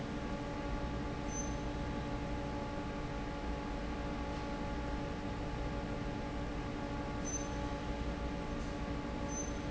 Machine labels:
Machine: fan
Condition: normal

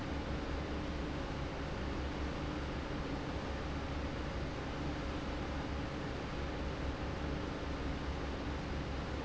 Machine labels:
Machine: fan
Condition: normal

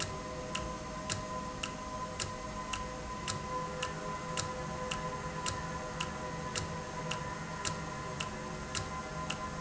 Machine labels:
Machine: valve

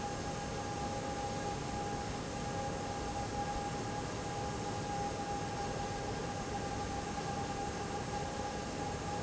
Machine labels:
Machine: fan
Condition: abnormal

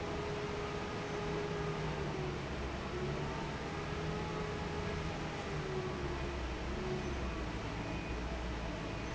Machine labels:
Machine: fan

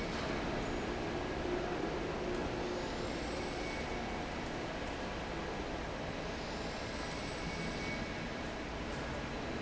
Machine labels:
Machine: fan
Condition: normal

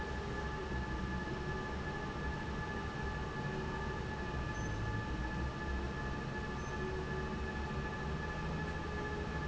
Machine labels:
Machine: fan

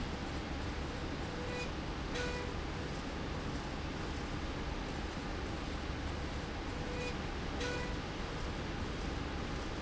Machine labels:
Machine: slide rail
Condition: normal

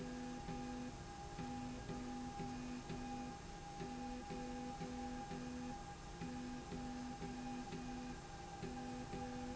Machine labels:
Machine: slide rail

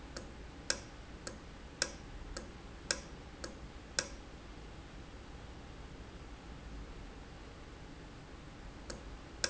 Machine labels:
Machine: valve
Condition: normal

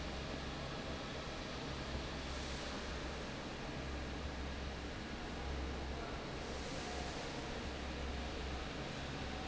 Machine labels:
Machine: fan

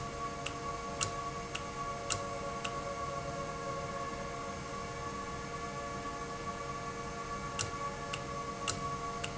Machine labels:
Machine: valve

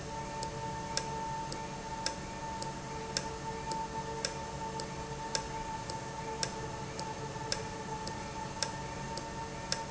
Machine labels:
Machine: valve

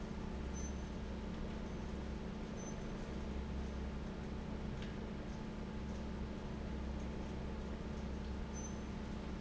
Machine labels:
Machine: fan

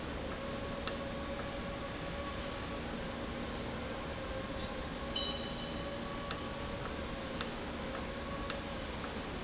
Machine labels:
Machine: valve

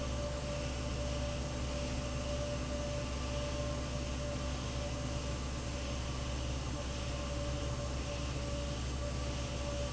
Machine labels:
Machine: fan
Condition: abnormal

